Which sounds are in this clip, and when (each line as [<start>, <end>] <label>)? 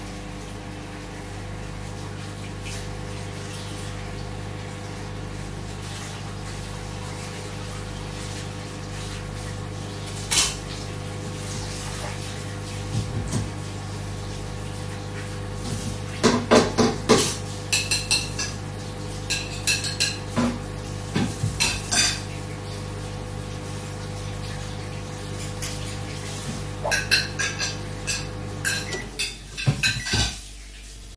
[0.00, 31.17] microwave
[0.04, 31.17] running water
[9.86, 11.01] cutlery and dishes
[16.15, 22.55] cutlery and dishes
[25.41, 30.75] cutlery and dishes